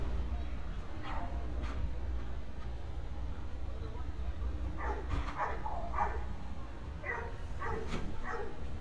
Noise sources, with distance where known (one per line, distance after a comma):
person or small group talking
dog barking or whining, near